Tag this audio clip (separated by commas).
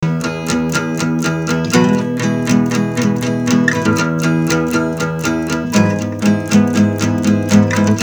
Musical instrument, Guitar, Music, Plucked string instrument, Acoustic guitar